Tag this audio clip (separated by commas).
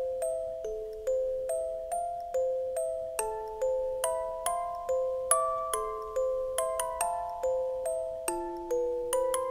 Music, Background music